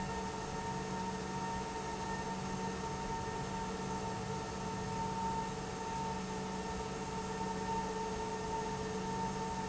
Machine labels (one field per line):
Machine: pump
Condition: normal